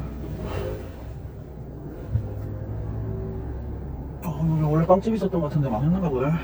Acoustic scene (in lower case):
car